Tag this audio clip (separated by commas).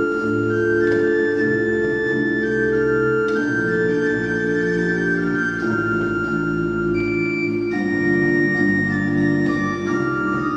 Music, Musical instrument, Organ, Piano, Classical music, Keyboard (musical)